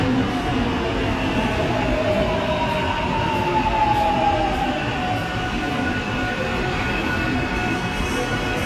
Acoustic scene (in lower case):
subway station